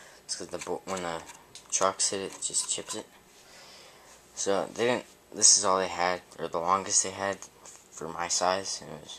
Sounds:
speech

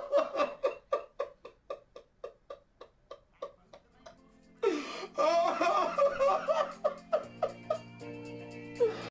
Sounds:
music

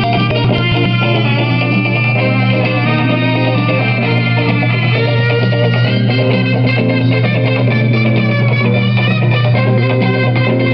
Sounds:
music

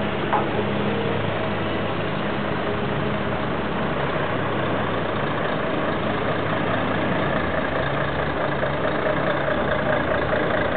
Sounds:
vehicle

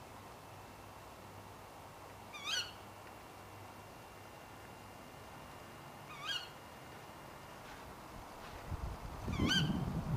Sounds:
bird
animal

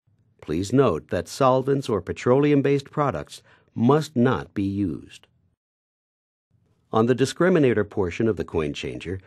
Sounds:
speech

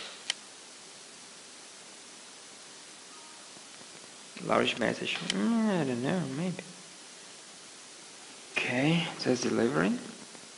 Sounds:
white noise

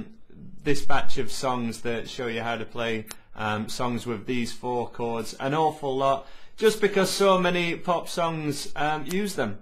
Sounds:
speech

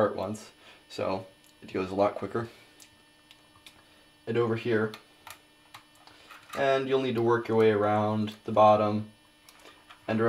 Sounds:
speech

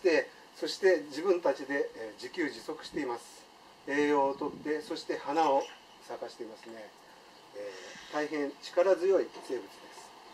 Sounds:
speech

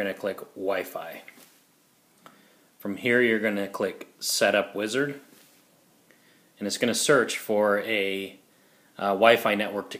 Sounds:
speech

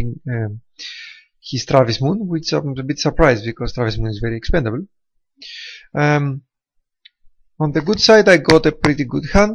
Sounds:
speech

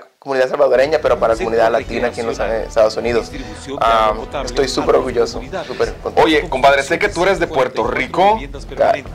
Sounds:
music
speech
television

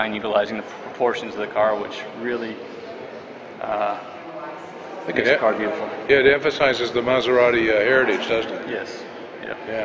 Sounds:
speech

